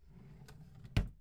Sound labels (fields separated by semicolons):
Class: drawer; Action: closing